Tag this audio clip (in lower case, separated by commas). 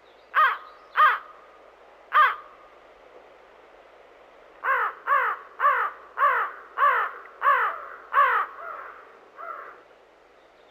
crow cawing